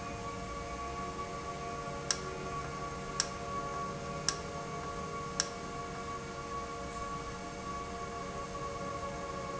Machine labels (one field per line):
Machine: valve